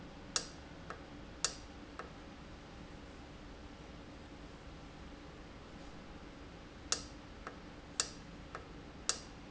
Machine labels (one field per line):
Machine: valve